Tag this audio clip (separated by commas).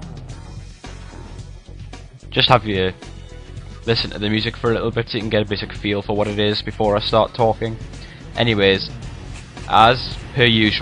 Speech, Music